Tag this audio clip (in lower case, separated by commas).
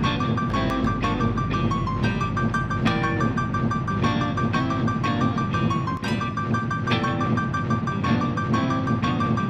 music, tender music